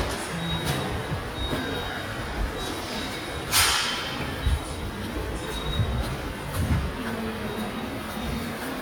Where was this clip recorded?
in a subway station